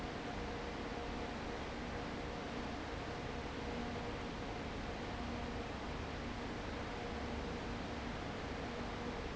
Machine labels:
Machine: fan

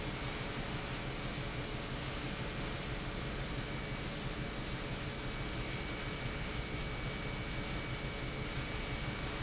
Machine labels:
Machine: pump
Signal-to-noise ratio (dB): -6 dB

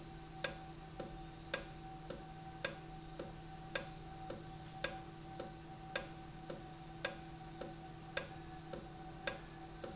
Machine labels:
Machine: valve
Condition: normal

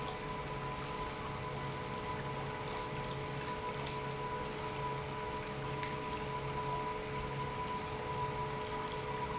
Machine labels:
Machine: pump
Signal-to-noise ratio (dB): -6 dB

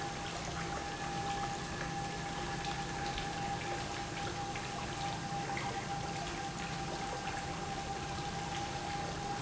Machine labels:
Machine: pump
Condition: normal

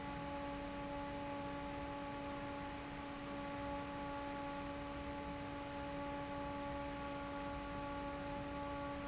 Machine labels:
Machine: fan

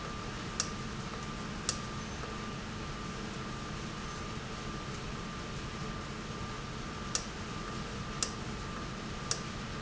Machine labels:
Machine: valve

